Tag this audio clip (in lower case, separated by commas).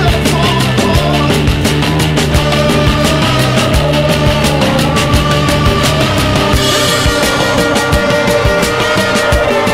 music, angry music